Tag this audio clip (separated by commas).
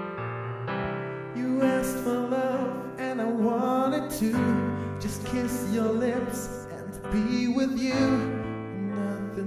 Music